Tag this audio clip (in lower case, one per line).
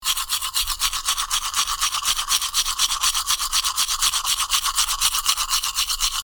domestic sounds